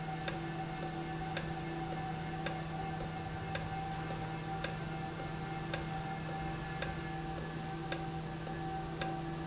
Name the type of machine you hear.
valve